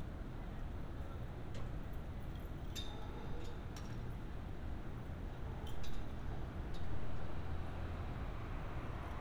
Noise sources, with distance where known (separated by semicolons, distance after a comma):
background noise